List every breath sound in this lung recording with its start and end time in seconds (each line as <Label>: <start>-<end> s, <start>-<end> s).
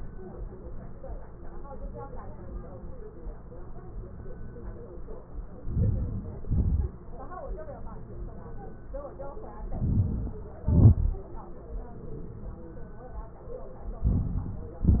Inhalation: 5.71-6.28 s, 9.79-10.36 s, 14.07-14.69 s
Exhalation: 6.49-6.90 s, 10.68-11.26 s, 14.73-15.00 s